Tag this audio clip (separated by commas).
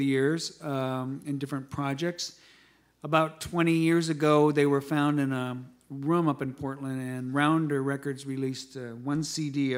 Speech